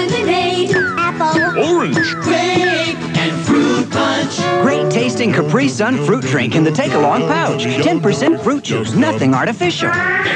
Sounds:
Music for children

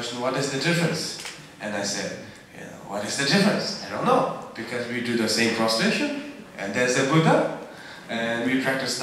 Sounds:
Speech

